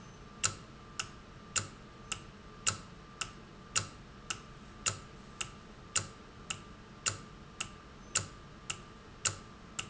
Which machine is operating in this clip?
valve